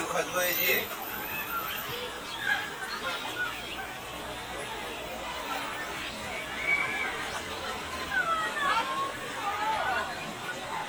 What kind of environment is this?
park